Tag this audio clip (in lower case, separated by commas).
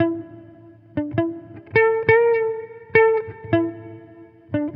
electric guitar, plucked string instrument, music, guitar, musical instrument